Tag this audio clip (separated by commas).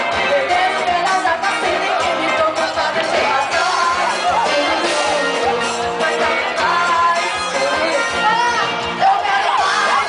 Music, Whoop